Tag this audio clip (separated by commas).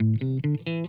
Electric guitar, Musical instrument, Plucked string instrument, Music, Guitar